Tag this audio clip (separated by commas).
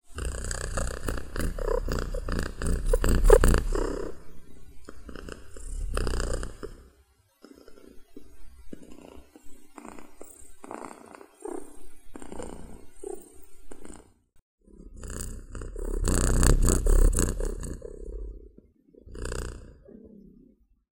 Animal, Cat, Domestic animals, Purr